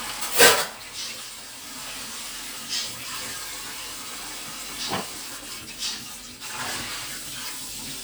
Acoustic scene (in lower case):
kitchen